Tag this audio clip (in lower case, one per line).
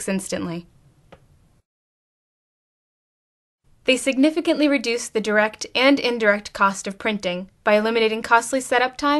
speech